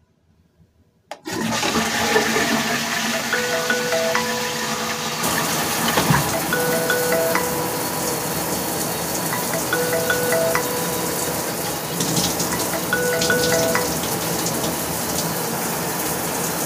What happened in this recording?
I flushed the toilet. The phone alarm went off. I turned on the shower.